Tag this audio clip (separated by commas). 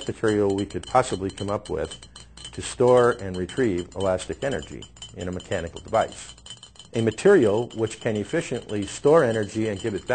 Speech